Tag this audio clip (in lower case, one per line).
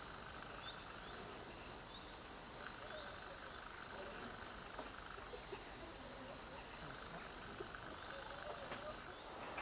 outside, rural or natural